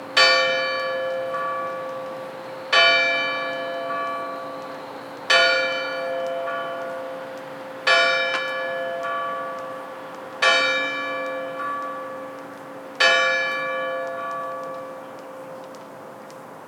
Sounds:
Church bell, Bell

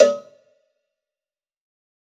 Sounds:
Bell, Cowbell

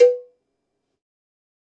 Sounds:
Cowbell, Bell

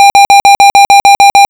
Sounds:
Alarm

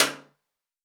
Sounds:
Hands, Clapping

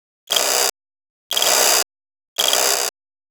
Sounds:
Mechanisms

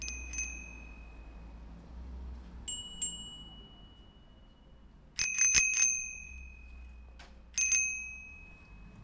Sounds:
Vehicle, Bicycle bell, Alarm, Bell, Bicycle

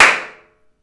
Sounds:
Hands, Clapping

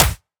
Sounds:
Clapping, Hands

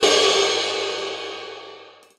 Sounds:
Percussion, Musical instrument, Cymbal, Music, Crash cymbal

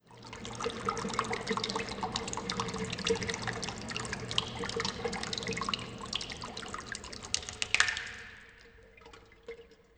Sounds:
faucet, Liquid, Water, home sounds

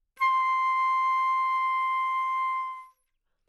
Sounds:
Musical instrument, Music, Wind instrument

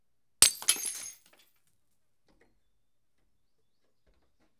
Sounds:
Glass, Shatter

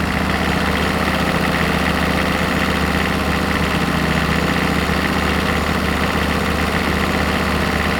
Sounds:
Engine, Vehicle

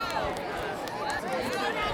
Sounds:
Crowd, Human group actions

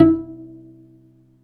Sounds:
Musical instrument, Music, Bowed string instrument

